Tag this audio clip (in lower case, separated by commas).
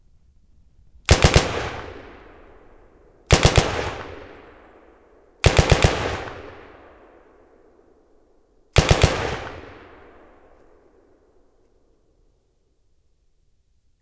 explosion, gunfire